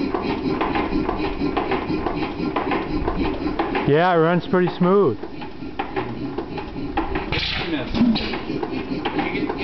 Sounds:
engine, speech

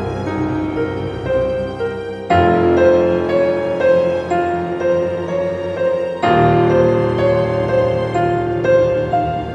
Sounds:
music, scary music

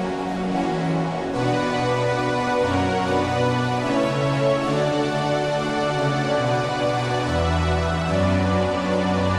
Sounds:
music, theme music

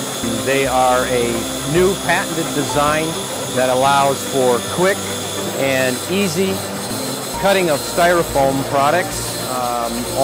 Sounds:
speech, music, tools

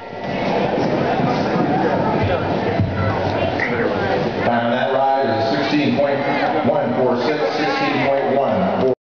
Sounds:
speech

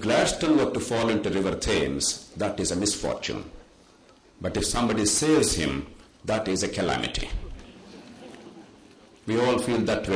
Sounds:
speech, monologue

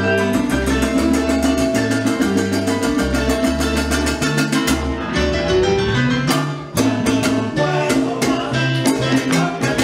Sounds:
flamenco, music, salsa music

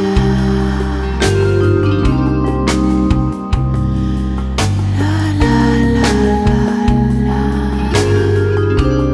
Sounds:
music

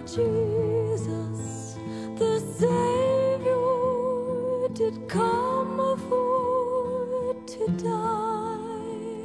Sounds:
music, soul music, christmas music, gospel music

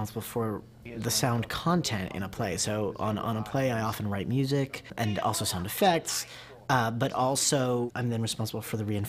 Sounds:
speech

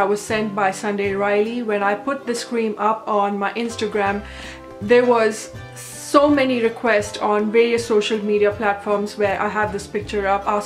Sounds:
music, speech

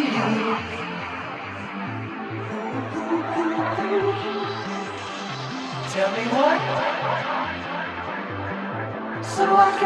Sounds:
electronic music, dubstep, music

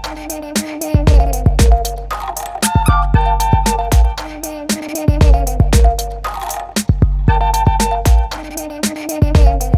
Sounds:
music

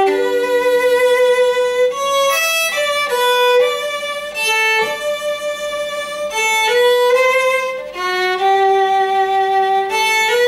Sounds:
musical instrument, music, violin

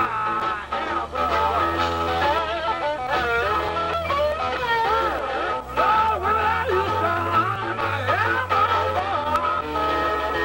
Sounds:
music

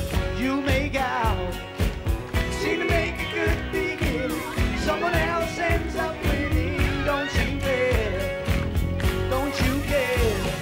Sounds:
singing

